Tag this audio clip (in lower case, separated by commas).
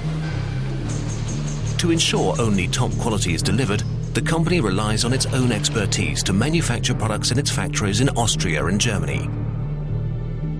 speech